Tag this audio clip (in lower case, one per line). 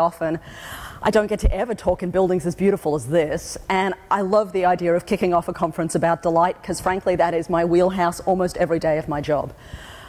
speech